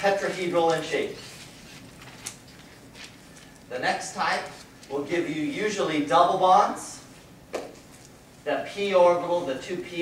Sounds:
inside a small room, Speech

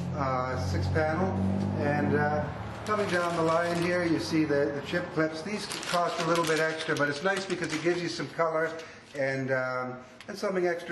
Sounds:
Speech

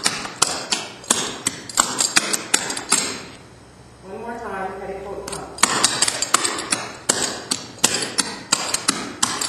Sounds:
Speech

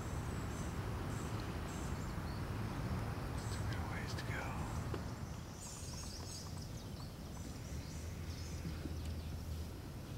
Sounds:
Speech

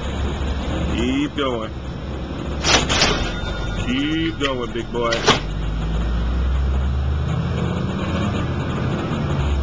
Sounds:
Vehicle, Speech, outside, urban or man-made, Car

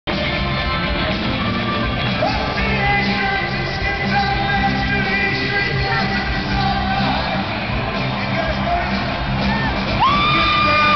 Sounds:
Music, Speech

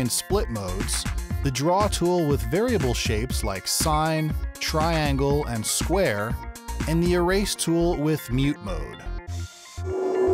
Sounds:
Music, Speech

